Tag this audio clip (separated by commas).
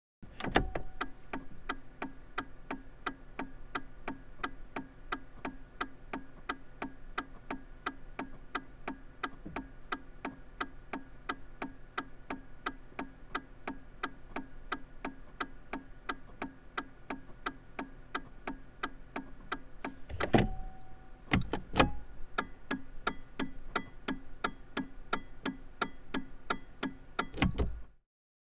Vehicle, Motor vehicle (road)